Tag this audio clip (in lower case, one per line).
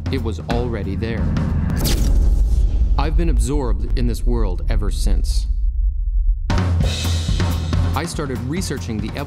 speech
music